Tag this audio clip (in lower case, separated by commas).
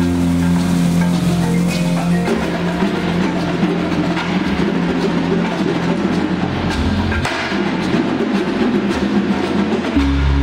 percussion, music